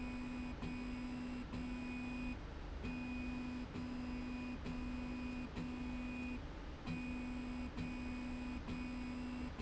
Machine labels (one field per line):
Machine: slide rail